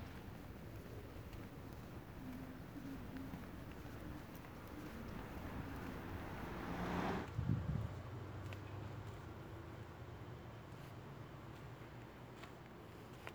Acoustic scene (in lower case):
residential area